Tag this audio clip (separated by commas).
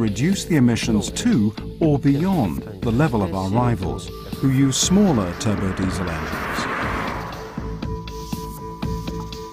Speech, Music, Car